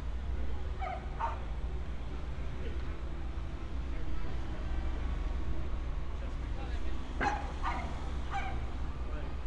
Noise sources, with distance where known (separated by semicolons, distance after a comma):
person or small group talking, near; dog barking or whining, near